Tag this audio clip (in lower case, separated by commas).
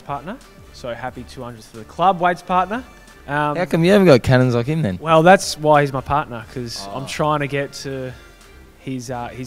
music, speech